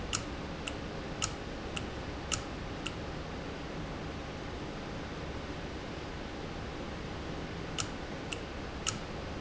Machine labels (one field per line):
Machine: valve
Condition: normal